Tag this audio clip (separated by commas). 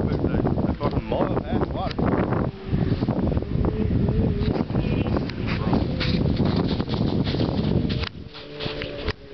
Speech